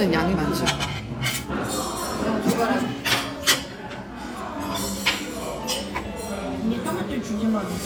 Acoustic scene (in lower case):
restaurant